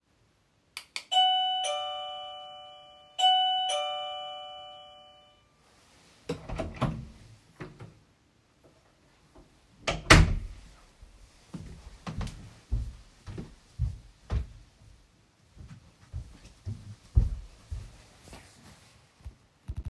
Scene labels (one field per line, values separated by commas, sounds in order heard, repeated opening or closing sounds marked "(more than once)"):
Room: bedroom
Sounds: bell ringing, door (more than once), footsteps